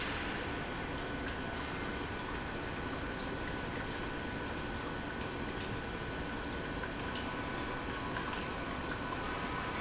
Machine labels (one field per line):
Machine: pump